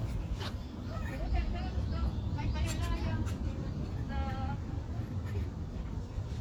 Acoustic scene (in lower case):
residential area